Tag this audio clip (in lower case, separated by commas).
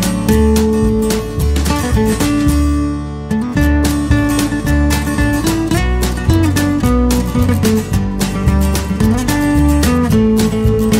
music